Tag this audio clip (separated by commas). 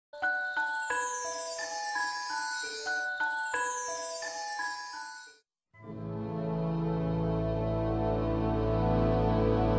Music